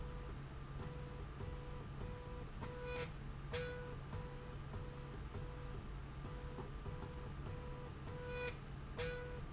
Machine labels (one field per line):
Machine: slide rail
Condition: normal